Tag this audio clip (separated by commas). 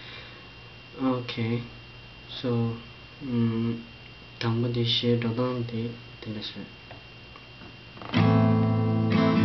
Guitar, Musical instrument, Speech, Strum, Acoustic guitar, Music, Plucked string instrument